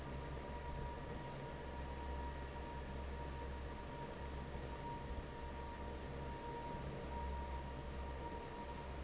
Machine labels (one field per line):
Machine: fan